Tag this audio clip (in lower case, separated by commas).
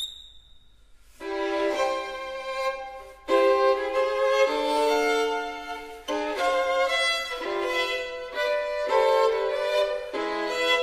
music, fiddle